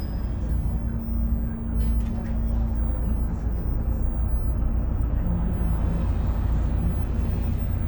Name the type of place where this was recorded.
bus